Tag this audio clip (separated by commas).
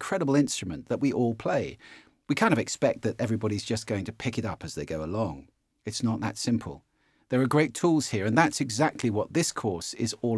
Speech